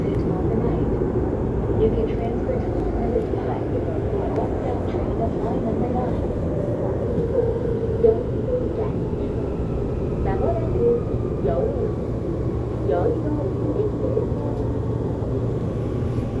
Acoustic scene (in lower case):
subway train